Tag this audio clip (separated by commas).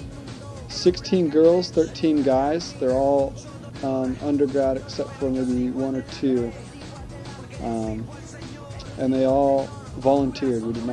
Speech, Music